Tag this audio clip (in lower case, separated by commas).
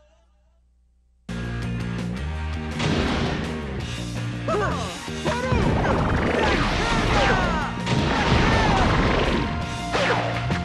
music, speech